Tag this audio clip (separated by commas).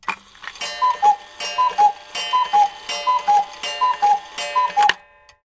Tick